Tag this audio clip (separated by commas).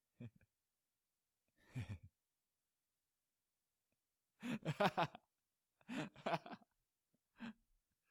Laughter, Human voice